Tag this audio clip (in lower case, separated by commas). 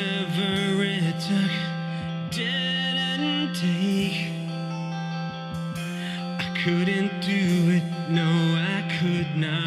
music